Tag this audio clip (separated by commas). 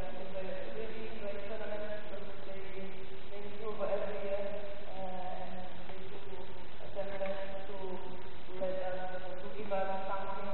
monologue, Male speech, Speech